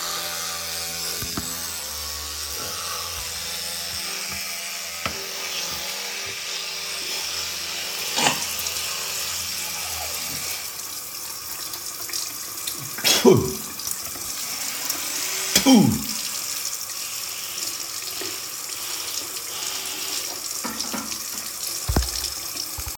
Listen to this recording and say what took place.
I brushed my teeth and turned on the water. I spit out the toothpaste and cleaned my mouth.